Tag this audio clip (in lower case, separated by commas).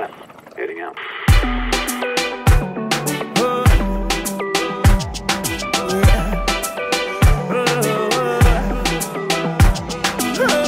speech, music